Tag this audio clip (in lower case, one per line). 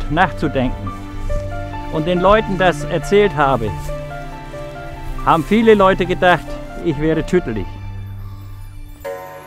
music
rustling leaves
speech